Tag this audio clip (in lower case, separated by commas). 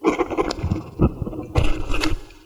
writing, home sounds